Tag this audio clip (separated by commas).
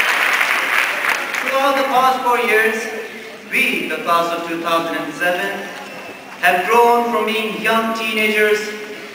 man speaking, monologue, Speech